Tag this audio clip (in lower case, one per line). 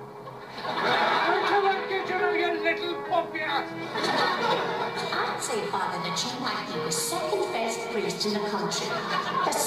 speech
music